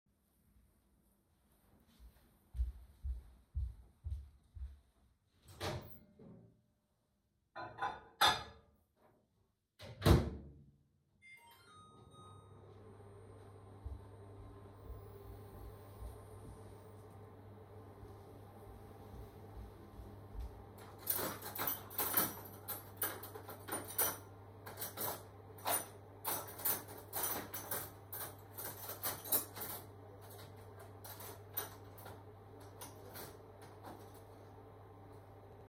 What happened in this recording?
I opened the microwave, put in the food and started it. Meanwhile I got cutlery and received a phone call while doing so